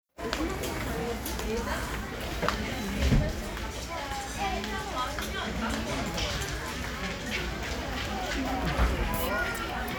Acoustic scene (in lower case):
crowded indoor space